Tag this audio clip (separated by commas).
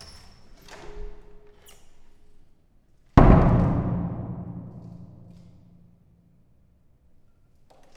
Domestic sounds, Door, Slam